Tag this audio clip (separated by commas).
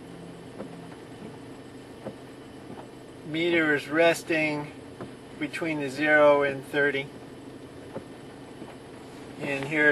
Speech